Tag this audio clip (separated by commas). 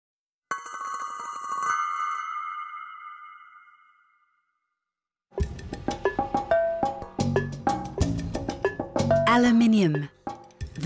Marimba, Mallet percussion, Glockenspiel